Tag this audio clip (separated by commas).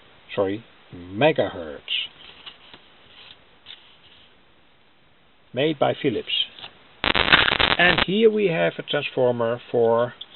Speech, inside a small room